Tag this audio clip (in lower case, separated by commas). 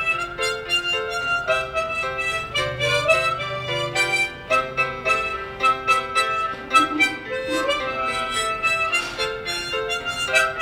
music, jingle bell